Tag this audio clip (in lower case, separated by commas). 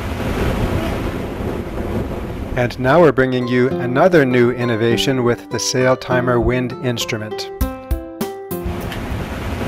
water vehicle, ocean, waves